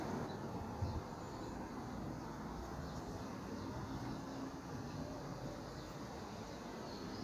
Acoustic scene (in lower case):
park